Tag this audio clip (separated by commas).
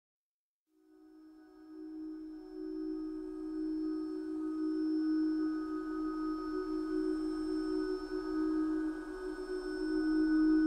Singing bowl